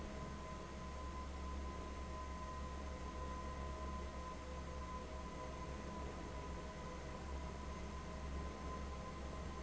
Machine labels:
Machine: fan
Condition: abnormal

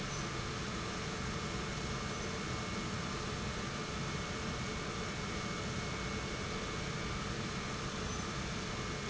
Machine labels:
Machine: pump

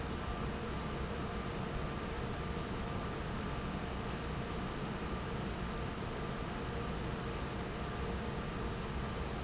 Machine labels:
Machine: fan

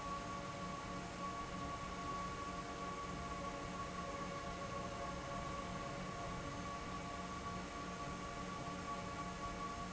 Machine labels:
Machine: fan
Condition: abnormal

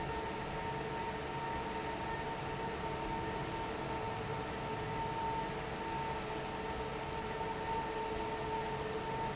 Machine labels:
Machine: fan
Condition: normal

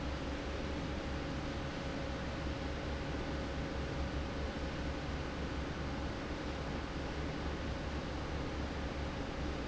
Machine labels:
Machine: fan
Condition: normal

